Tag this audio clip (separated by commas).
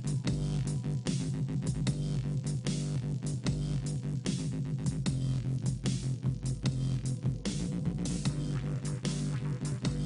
Music